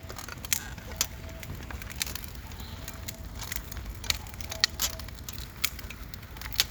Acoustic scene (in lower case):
park